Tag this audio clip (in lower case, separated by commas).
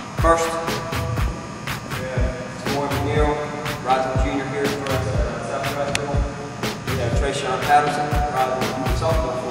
music, speech